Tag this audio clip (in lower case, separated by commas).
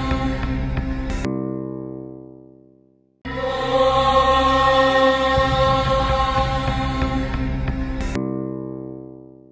music, chant, mantra